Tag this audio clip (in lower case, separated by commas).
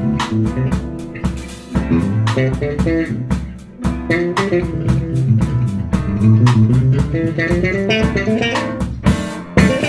guitar, blues, music, musical instrument, plucked string instrument